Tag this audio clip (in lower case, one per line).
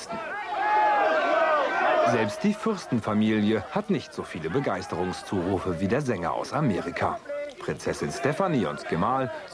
speech